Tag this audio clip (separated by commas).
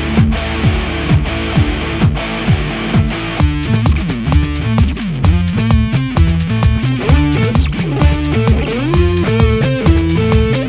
Guitar, Music, Electric guitar, Plucked string instrument, Musical instrument